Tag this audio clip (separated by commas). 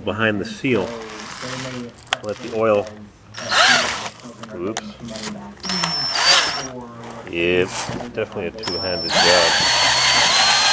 Speech